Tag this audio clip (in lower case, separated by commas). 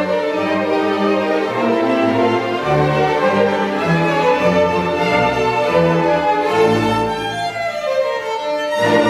musical instrument, music, fiddle